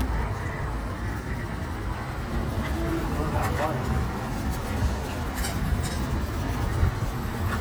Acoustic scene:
street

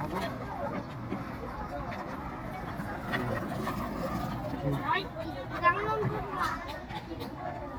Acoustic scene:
park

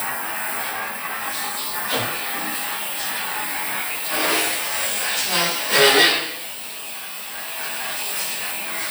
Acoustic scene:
restroom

